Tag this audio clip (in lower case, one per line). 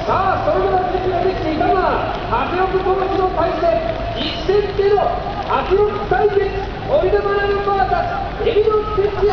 speech